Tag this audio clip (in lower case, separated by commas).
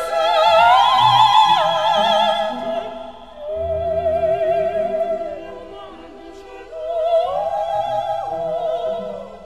opera, music